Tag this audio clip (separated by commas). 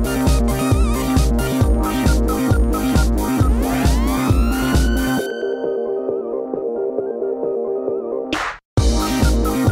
Music